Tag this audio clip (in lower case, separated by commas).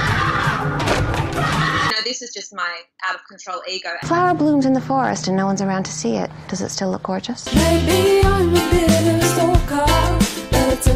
music, speech